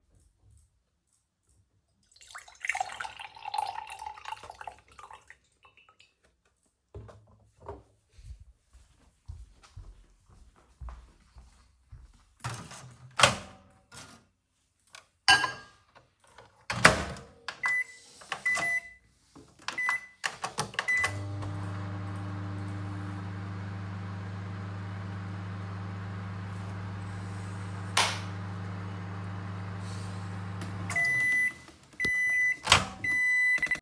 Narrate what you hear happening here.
I pour liquid into a glass and carry it to the microwave. I open the microwave door, place the glass inside and start the heating program. After the microwave finishes, I open the door again and remove the glass.